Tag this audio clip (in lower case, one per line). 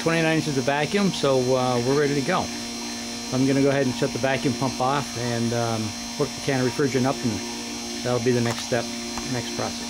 speech
engine